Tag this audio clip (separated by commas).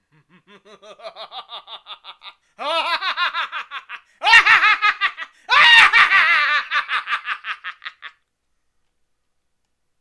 Human voice, Laughter